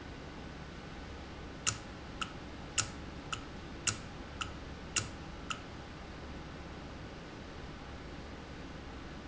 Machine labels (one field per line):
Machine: valve